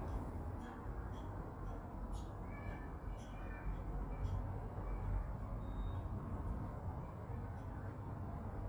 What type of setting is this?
residential area